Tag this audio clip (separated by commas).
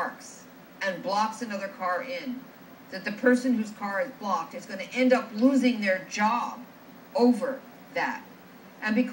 Speech